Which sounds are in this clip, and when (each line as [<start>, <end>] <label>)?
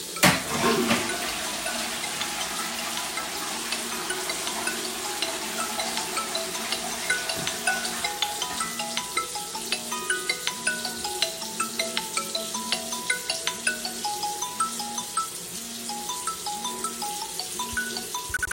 [0.09, 18.54] running water
[0.13, 9.53] toilet flushing
[0.21, 18.54] phone ringing